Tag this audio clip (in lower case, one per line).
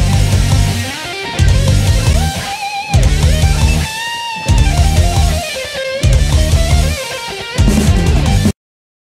music
guitar
musical instrument
strum
plucked string instrument